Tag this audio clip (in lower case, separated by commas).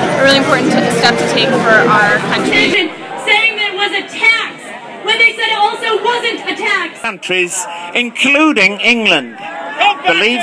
speech